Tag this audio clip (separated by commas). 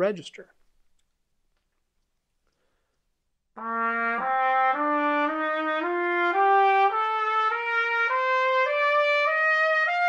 playing cornet